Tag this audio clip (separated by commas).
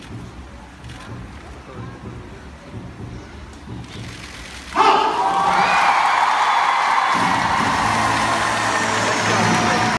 Speech